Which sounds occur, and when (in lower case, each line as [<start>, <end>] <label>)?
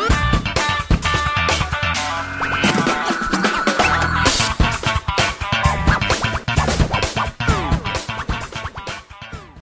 [0.00, 9.61] music